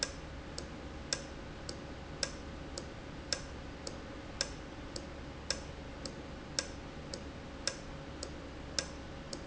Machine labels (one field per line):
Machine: valve